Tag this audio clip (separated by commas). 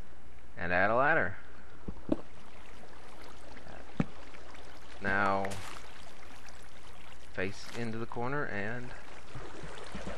Speech